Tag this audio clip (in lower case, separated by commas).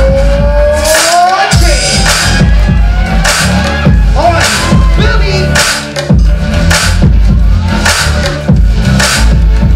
hip hop music